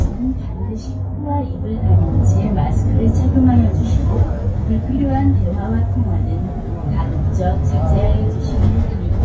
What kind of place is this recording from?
bus